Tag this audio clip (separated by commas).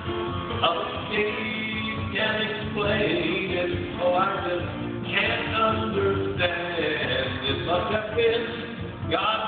Music, inside a large room or hall, Singing